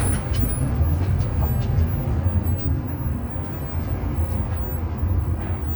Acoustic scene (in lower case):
bus